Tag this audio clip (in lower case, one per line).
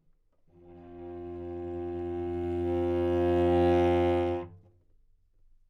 bowed string instrument
musical instrument
music